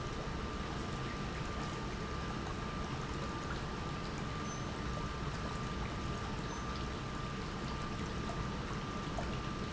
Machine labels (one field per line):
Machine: pump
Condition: normal